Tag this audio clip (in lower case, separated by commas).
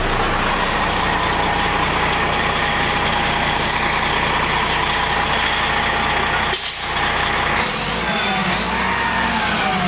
vehicle, truck